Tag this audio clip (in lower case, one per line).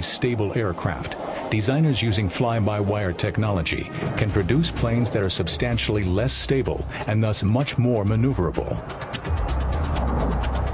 music
airplane
vehicle
aircraft
speech